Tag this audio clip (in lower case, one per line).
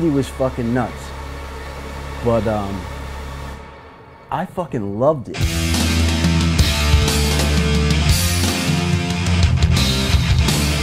music
punk rock
speech